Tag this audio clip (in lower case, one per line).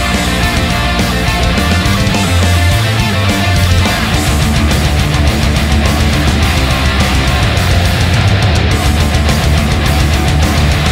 music